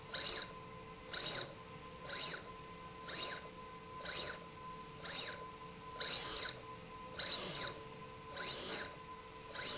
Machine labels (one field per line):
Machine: slide rail